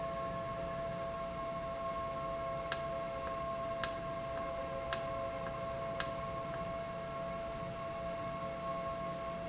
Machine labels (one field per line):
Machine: valve